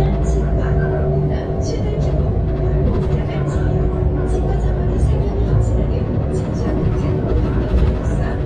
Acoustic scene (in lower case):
bus